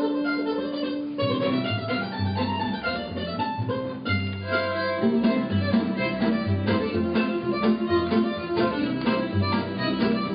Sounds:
Guitar, Country, Banjo, Music, fiddle, Plucked string instrument, Musical instrument

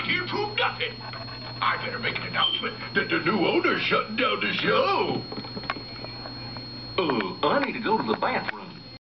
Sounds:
Speech

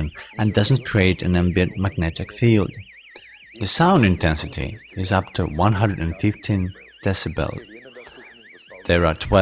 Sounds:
Speech

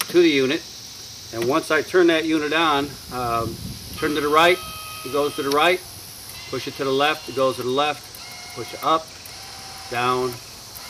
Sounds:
Speech

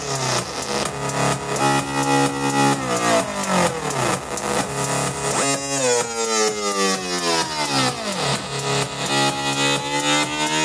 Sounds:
playing synthesizer

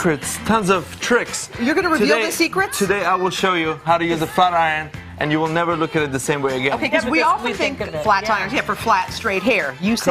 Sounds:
Speech, Music

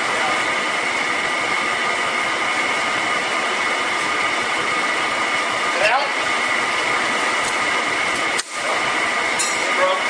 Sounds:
Engine, Car, Vehicle, Medium engine (mid frequency), Speech

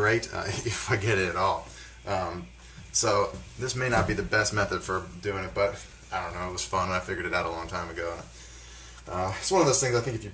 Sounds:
Speech

